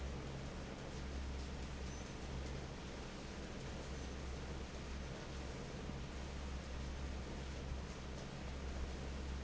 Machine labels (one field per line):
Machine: fan